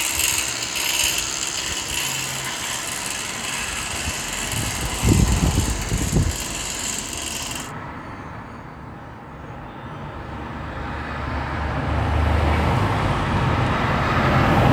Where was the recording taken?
on a street